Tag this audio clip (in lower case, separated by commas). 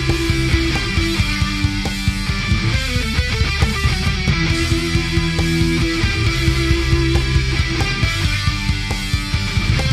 music